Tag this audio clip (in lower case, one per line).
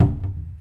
domestic sounds
cupboard open or close